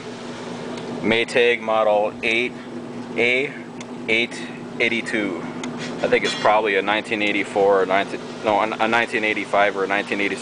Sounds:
outside, rural or natural, Speech

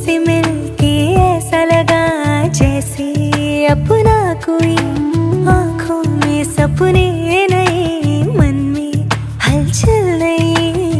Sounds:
Music

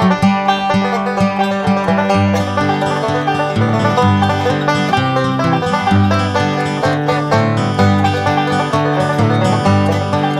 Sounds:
Music

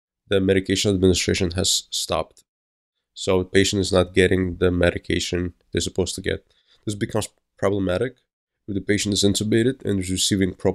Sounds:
Speech

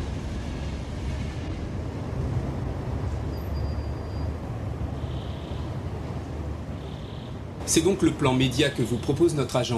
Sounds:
Speech

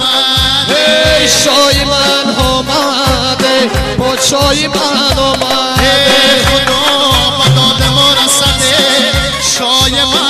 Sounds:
Wedding music, Music

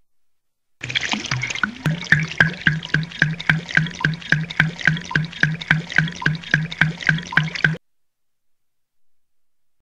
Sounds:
Water

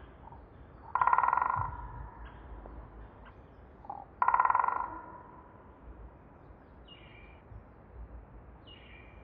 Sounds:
woodpecker pecking tree

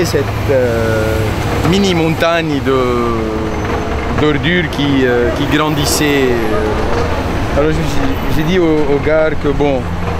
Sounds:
Speech

